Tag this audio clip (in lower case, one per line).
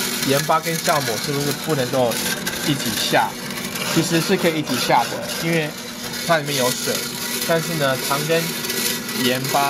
blender